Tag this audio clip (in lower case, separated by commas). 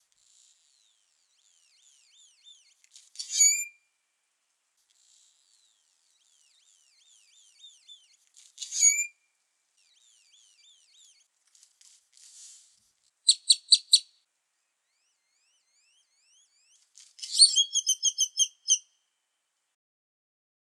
chirp, animal, bird, bird call, wild animals